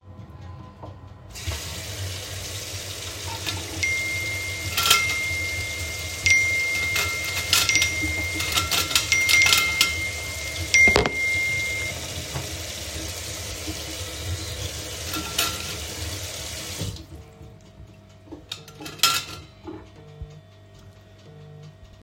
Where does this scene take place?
kitchen